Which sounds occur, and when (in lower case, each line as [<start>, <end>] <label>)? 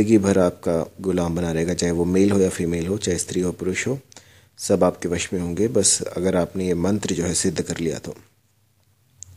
[0.00, 3.98] man speaking
[0.00, 9.35] background noise
[4.05, 4.52] breathing
[4.55, 8.24] man speaking
[8.36, 8.53] generic impact sounds
[8.77, 8.87] generic impact sounds
[9.18, 9.35] generic impact sounds